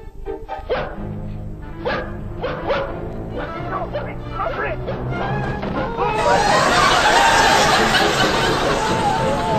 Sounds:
bow-wow
music
speech
domestic animals
dog
animal

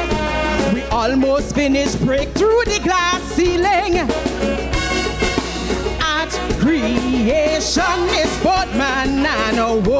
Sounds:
female singing
music

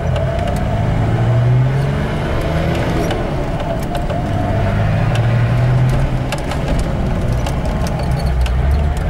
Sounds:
clatter

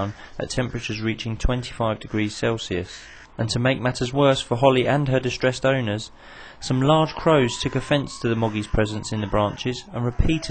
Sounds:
animal
speech

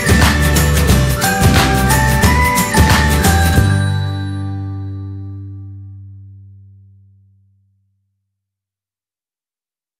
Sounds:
silence
music
outside, urban or man-made

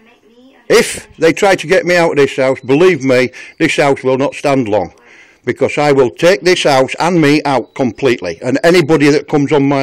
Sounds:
speech
outside, urban or man-made

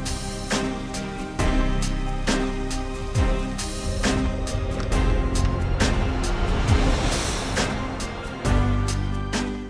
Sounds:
music

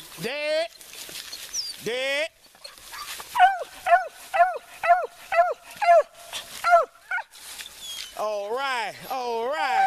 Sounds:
speech
animal
dog

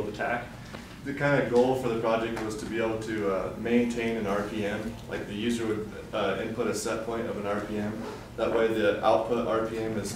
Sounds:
speech

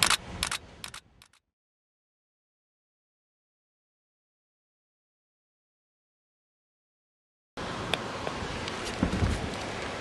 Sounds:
outside, rural or natural

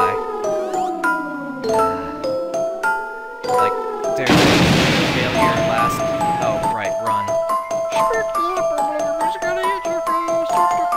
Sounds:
speech
music

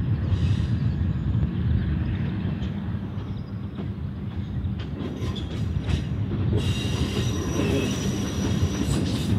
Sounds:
train wheels squealing
rail transport
railroad car
clickety-clack
train

